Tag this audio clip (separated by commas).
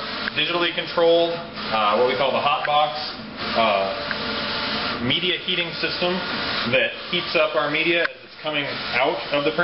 Speech, Printer